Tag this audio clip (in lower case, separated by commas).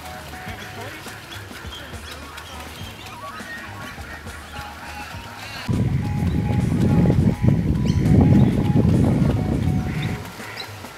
music